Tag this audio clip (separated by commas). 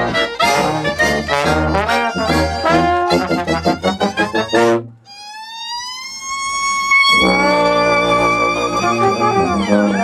Musical instrument, Music, Trombone, inside a small room